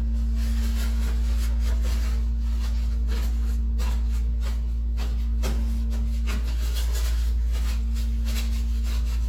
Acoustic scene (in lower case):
restroom